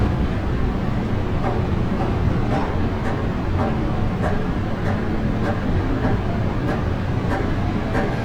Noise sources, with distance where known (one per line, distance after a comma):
engine of unclear size, near
unidentified impact machinery